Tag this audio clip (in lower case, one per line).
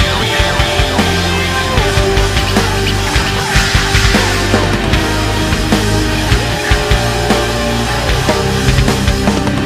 music
angry music
soundtrack music